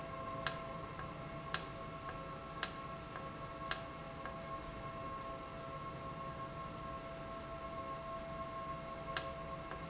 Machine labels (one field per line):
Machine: valve